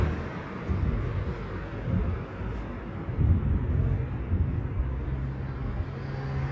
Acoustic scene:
street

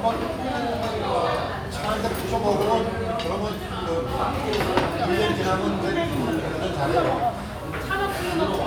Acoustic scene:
restaurant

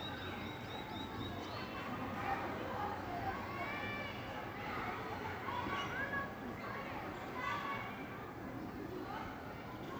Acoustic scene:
park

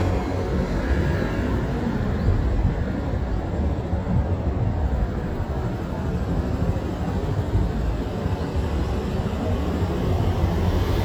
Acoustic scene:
street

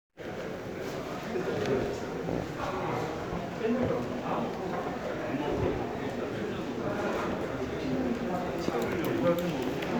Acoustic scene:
crowded indoor space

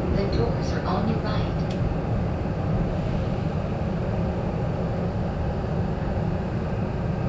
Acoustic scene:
subway train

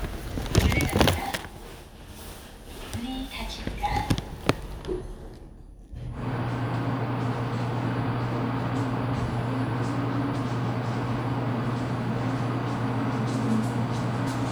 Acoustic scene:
elevator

